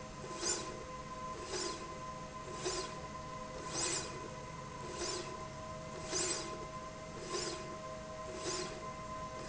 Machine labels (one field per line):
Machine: slide rail